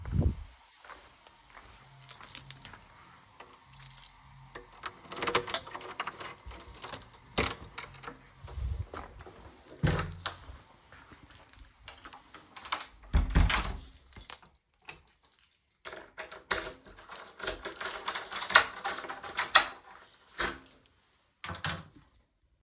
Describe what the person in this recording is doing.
I'm walking to my apartment, I get out my keys and unlock the door. I walk in and close the door, turn on the light and put down my keys.